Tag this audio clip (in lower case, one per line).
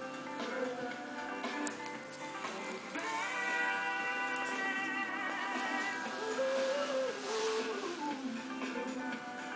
music